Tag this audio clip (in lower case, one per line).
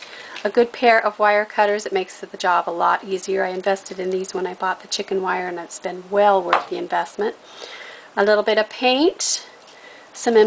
speech